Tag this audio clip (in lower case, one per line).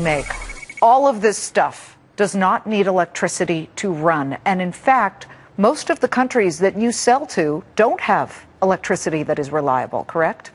speech